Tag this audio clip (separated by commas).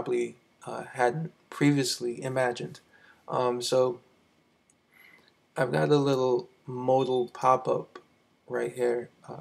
Speech